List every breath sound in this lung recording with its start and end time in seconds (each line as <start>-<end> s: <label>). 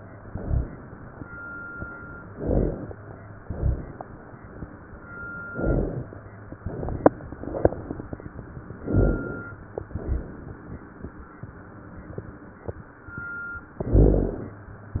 0.30-0.80 s: exhalation
0.30-0.80 s: rhonchi
2.28-2.96 s: inhalation
2.28-2.96 s: rhonchi
3.44-3.93 s: exhalation
3.44-3.93 s: rhonchi
5.50-6.19 s: inhalation
5.50-6.19 s: rhonchi
8.80-9.49 s: inhalation
8.80-9.49 s: rhonchi
9.98-10.40 s: exhalation
9.98-10.40 s: rhonchi
13.79-14.48 s: inhalation
13.79-14.48 s: rhonchi